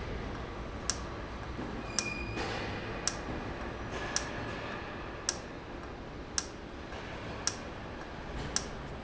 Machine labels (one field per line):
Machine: valve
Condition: normal